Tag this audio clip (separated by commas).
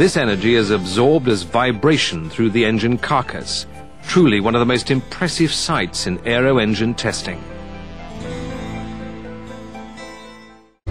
Music, Speech